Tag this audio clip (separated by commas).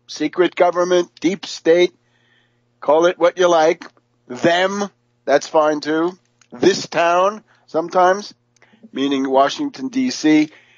Speech